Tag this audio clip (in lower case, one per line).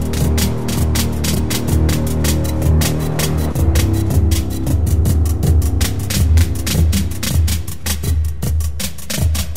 music